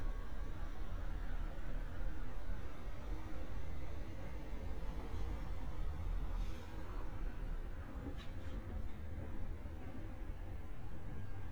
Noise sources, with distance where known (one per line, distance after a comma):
engine of unclear size